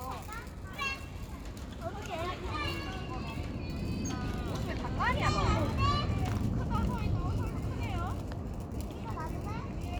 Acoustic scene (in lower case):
residential area